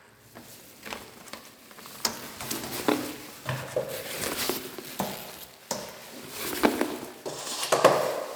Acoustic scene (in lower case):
elevator